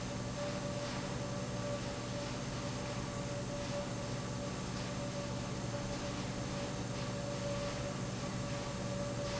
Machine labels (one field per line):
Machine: pump